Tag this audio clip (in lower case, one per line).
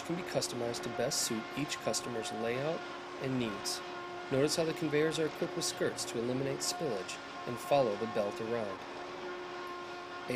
speech